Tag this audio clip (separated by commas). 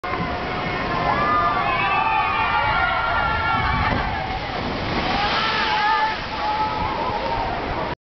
Slosh, Water